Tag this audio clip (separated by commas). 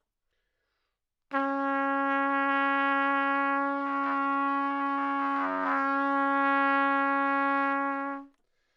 Brass instrument, Musical instrument, Music, Trumpet